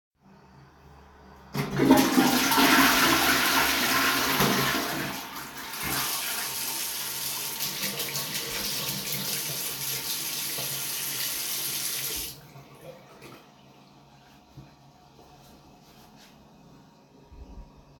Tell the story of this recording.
The phone is placed on a bathroom shelf. Water runs briefly from the sink. Shortly after the toilet is flushed and the flushing sound fills the room.